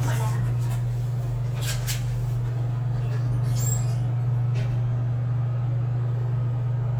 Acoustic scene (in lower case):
elevator